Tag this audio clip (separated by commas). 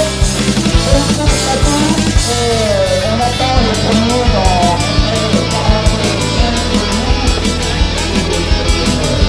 Speech, Music